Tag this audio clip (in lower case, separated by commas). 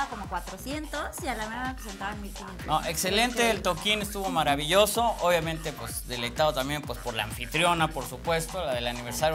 music, dubstep, speech, electronic music